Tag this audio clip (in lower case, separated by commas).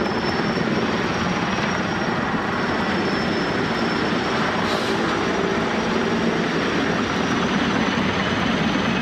vehicle